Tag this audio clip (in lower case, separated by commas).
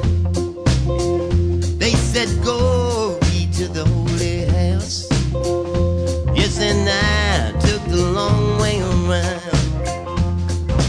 music, pop music